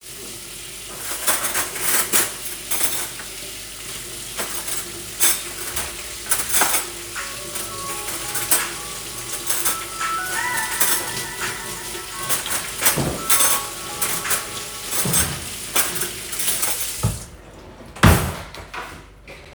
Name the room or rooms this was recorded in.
kitchen